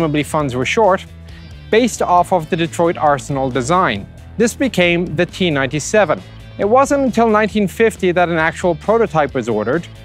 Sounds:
music
speech

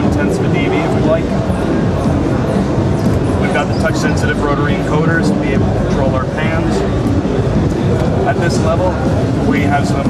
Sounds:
music
speech

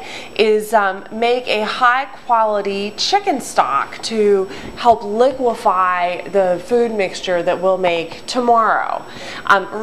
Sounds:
speech

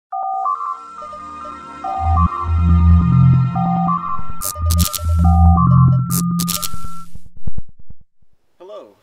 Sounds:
speech
outside, rural or natural
music

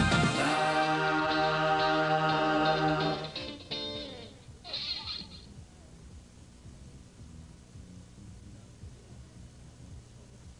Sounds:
music

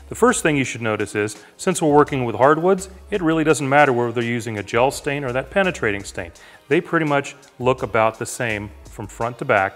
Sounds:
planing timber

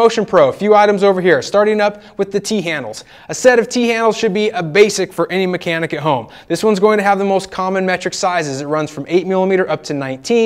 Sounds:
speech

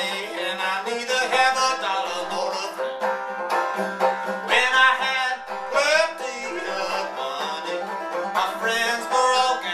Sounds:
banjo
music

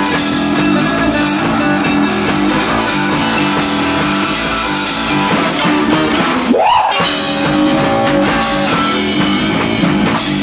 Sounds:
reverberation
music

